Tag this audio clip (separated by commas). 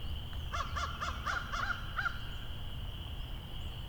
Crow, Wild animals, Bird, Animal